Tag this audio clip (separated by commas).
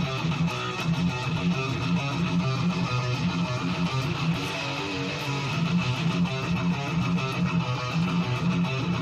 Musical instrument, Music, Guitar, playing bass guitar, Plucked string instrument, Bass guitar, Strum